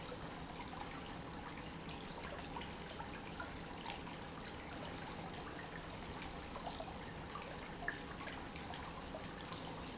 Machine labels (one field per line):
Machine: pump